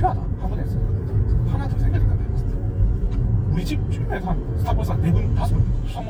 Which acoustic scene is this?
car